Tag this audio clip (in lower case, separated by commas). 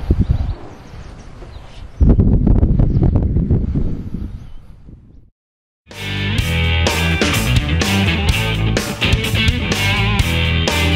music